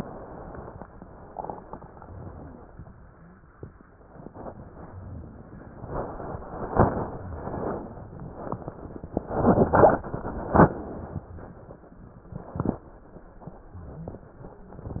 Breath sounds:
Inhalation: 4.83-5.85 s
Exhalation: 5.85-6.73 s

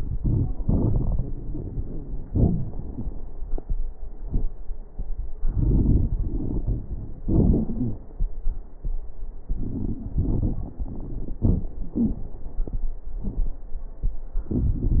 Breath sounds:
Inhalation: 0.00-2.26 s, 5.41-7.17 s, 9.46-10.78 s, 14.46-15.00 s
Exhalation: 2.28-2.76 s, 7.23-8.04 s, 11.37-12.60 s
Wheeze: 7.73-8.04 s
Crackles: 0.00-2.26 s, 2.28-2.76 s, 5.41-7.17 s, 9.46-10.78 s, 11.37-12.60 s, 14.46-15.00 s

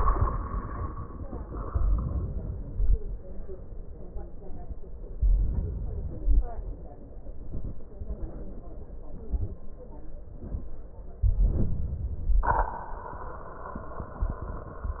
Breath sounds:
Inhalation: 5.18-6.55 s, 11.10-12.42 s

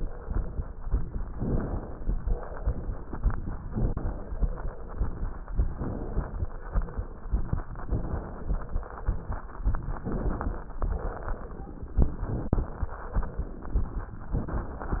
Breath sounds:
Inhalation: 1.31-2.12 s, 3.65-4.43 s, 5.62-6.49 s, 7.91-8.80 s, 10.07-10.82 s, 12.07-12.87 s, 14.38-15.00 s
Exhalation: 2.12-3.14 s, 4.43-5.44 s, 6.51-7.67 s, 8.80-9.99 s, 10.86-12.04 s, 12.87-14.06 s

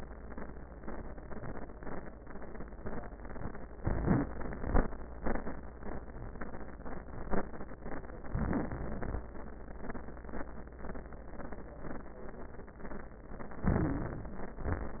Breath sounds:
Inhalation: 3.72-4.50 s, 8.30-9.26 s, 13.65-14.64 s
Exhalation: 14.66-15.00 s
Wheeze: 3.72-4.50 s, 8.30-9.26 s, 13.65-14.64 s
Crackles: 8.30-9.26 s, 14.66-15.00 s

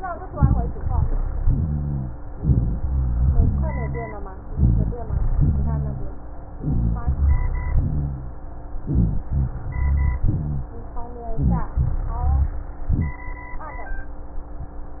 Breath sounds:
Inhalation: 1.44-2.17 s, 3.38-4.29 s, 5.39-6.11 s, 7.72-8.43 s, 10.25-10.80 s, 11.84-12.64 s
Exhalation: 0.36-1.08 s, 2.33-3.32 s, 4.55-5.35 s, 6.60-7.06 s, 8.86-9.28 s, 11.31-11.86 s, 12.81-13.28 s
Rhonchi: 1.44-2.17 s, 2.33-3.32 s, 3.38-4.29 s, 4.57-5.37 s, 5.39-6.11 s, 6.60-7.06 s, 7.72-8.43 s, 8.86-9.28 s, 10.25-10.80 s, 11.84-12.64 s, 12.81-13.28 s

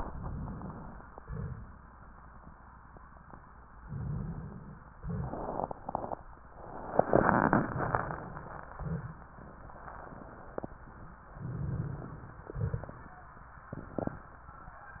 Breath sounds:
Inhalation: 3.83-4.93 s, 11.38-12.48 s
Exhalation: 1.19-1.99 s, 5.00-5.77 s, 12.47-13.27 s
Crackles: 12.47-13.27 s

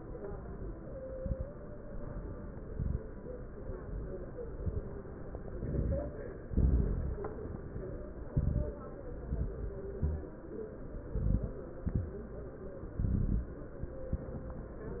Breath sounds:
Inhalation: 0.97-1.71 s, 2.64-3.08 s, 4.56-5.00 s, 5.51-6.15 s, 8.30-8.83 s, 9.99-10.41 s, 11.12-11.66 s, 12.96-13.59 s
Exhalation: 6.44-7.26 s, 9.25-9.78 s, 11.80-12.23 s, 14.04-14.50 s
Crackles: 0.97-1.71 s, 2.64-3.08 s, 4.56-5.00 s, 5.51-6.15 s, 6.44-7.26 s, 8.30-8.83 s, 9.25-9.78 s, 9.99-10.41 s, 11.12-11.66 s, 11.80-12.23 s, 12.96-13.59 s, 14.04-14.50 s

